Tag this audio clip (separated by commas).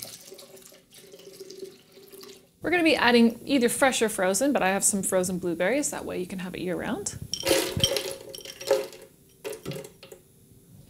Speech